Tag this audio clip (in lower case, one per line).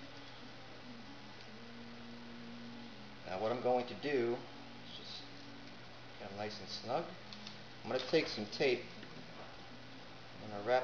speech